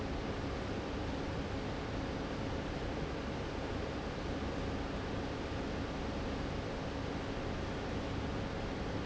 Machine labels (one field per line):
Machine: fan